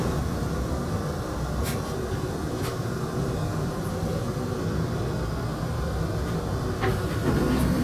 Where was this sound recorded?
on a subway train